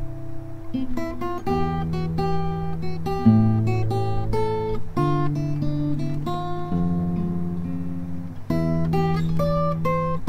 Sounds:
Music, Plucked string instrument, Guitar, Electric guitar, Musical instrument

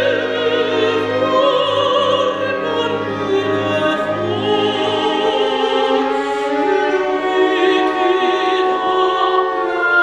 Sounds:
Opera, Music, Orchestra, Singing, Classical music, fiddle

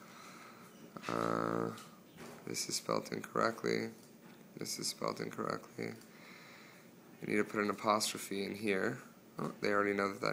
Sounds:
Speech

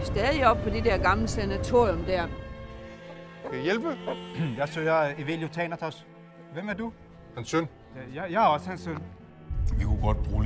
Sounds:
Speech, Chicken, Music

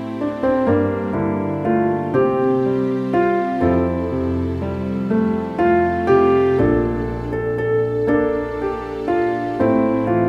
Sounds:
Music

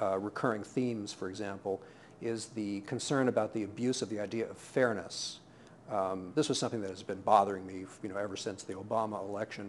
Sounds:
Speech

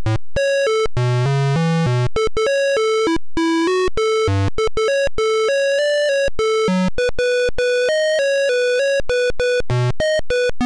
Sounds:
Music

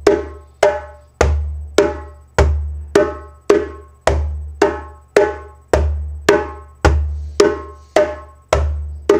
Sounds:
playing djembe

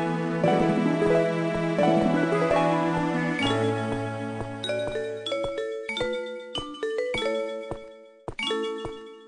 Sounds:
Music

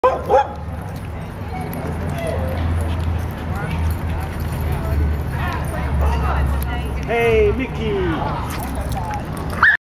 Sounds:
Yip, Animal, Speech, Bow-wow, Dog, pets

